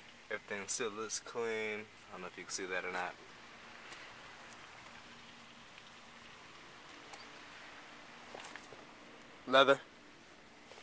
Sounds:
Speech

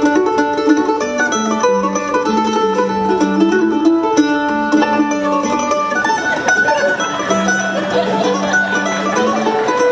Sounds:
fiddle, Musical instrument, Music

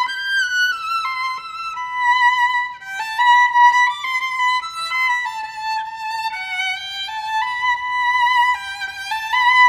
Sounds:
Musical instrument, Music, Violin

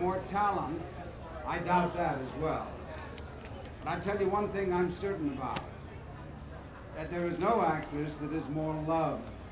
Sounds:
Speech

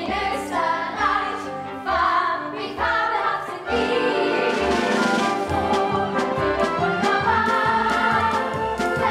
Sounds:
Opera, Music

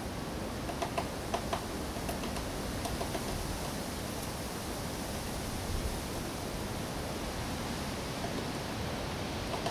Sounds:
woodpecker pecking tree

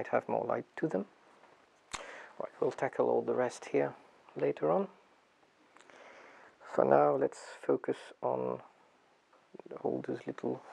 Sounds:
Speech

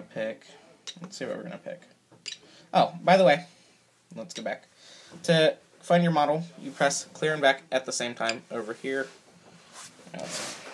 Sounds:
Speech

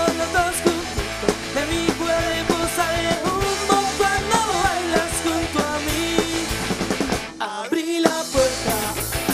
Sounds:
Disco, Music

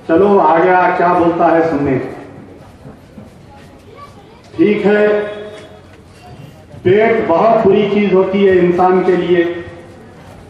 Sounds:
Speech, Narration, man speaking

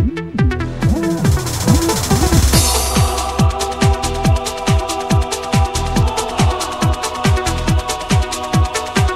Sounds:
Techno, Music, Electronic music

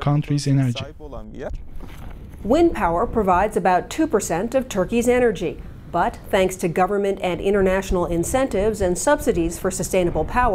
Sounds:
Speech

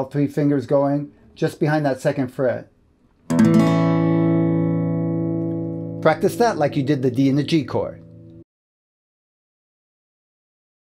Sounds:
Speech, Guitar, Plucked string instrument, Music, Musical instrument, Acoustic guitar

